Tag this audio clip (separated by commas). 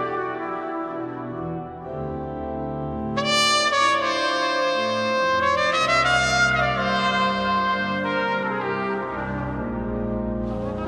Saxophone, Musical instrument, Music